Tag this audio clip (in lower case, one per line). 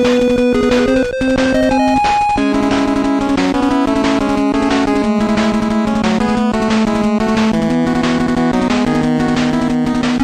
music